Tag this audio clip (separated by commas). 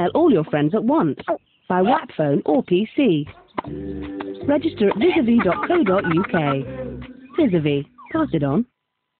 Speech, Music